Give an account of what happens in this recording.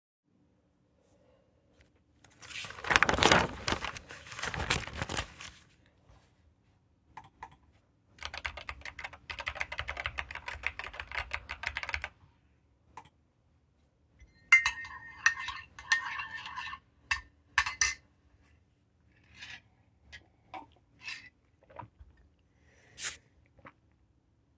I paged through a college block, opened a textfile and typed a few words from the college block into the textfile. Then i closed the file, stirred a spoon in my coffee mug and took a sip from the coffee.